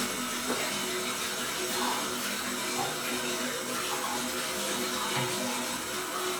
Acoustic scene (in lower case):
restroom